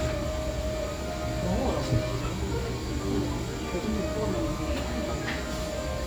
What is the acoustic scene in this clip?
cafe